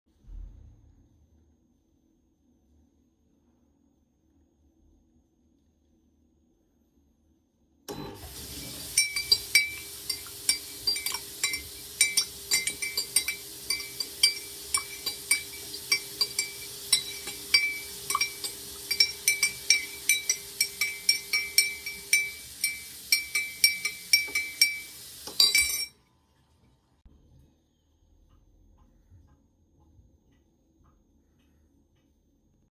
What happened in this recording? This is a bonus scene where I turned on the coffee machine and the water at the same time while also rattling a spoon.